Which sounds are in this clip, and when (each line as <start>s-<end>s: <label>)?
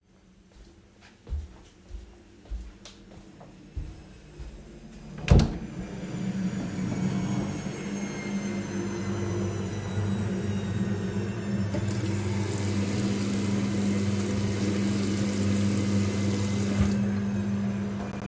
1.3s-5.1s: footsteps
5.2s-5.5s: door
11.7s-16.9s: running water